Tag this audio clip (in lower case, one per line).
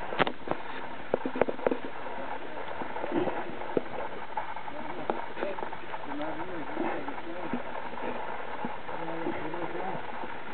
vehicle
boat
speech